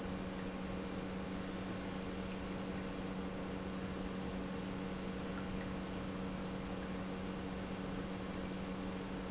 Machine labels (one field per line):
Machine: pump